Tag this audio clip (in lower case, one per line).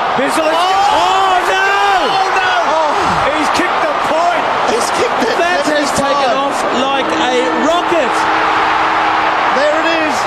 speech